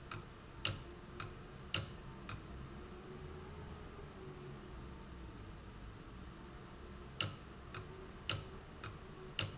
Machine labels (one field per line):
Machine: valve